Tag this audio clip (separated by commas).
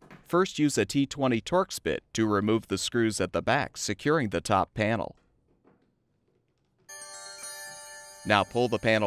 Music, Speech